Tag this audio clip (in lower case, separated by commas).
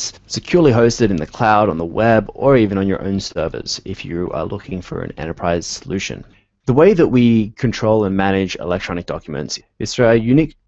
speech synthesizer